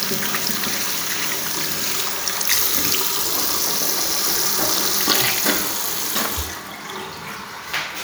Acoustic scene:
restroom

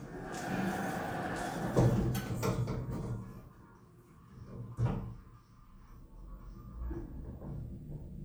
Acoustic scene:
elevator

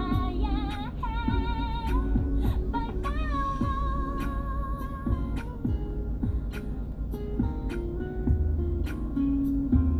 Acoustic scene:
car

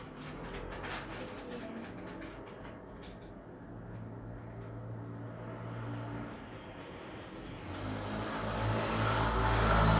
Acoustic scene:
street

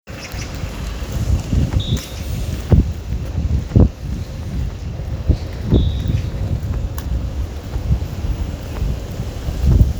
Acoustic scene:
residential area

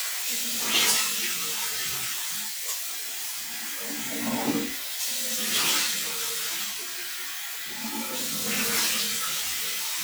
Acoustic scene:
restroom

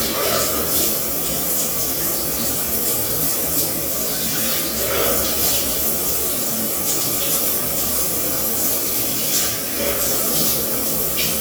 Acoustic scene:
restroom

